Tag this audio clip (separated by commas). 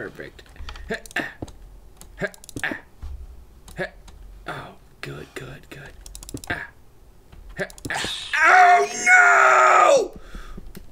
Speech